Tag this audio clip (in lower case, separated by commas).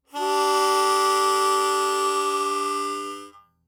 harmonica, music, musical instrument